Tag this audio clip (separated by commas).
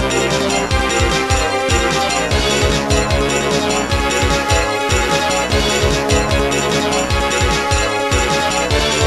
Music